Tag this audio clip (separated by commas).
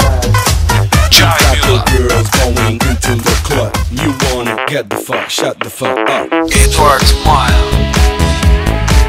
Music, New-age music, Dance music, Soundtrack music